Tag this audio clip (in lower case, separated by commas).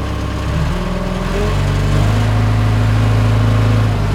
engine, vroom